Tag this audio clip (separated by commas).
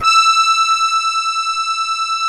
Music, Accordion, Musical instrument